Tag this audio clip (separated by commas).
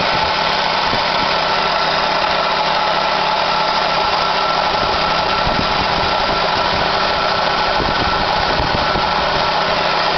Engine, Vehicle